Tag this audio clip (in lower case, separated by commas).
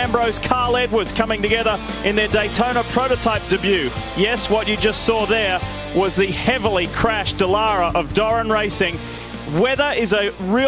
speech, music